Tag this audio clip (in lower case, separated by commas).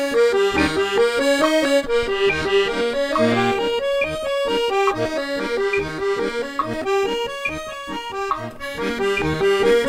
playing accordion